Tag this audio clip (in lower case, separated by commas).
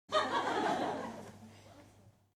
laughter, human voice